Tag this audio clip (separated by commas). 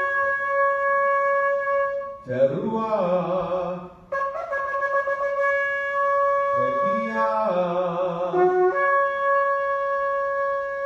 playing shofar